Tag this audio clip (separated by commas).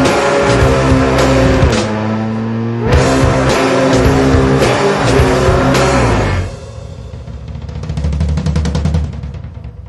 Hi-hat